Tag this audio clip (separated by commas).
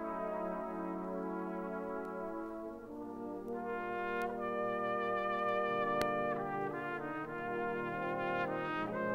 playing cornet